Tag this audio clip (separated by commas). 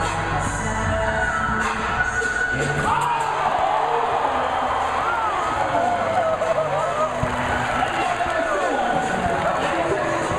Speech, Music